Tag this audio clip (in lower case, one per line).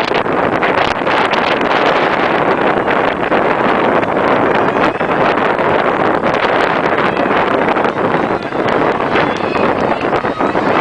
outside, rural or natural
speech